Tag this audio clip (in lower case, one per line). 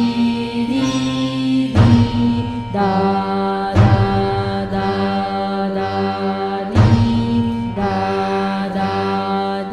mantra
music